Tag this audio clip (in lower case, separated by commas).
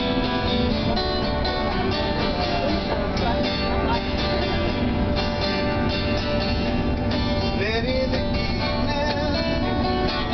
speech, music, male singing